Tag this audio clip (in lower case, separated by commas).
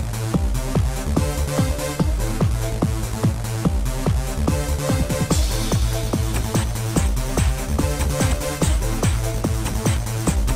music